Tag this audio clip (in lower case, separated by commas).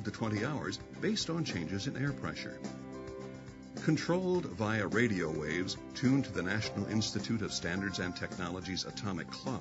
music, speech